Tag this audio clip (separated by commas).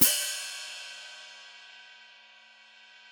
Music, Percussion, Hi-hat, Cymbal, Musical instrument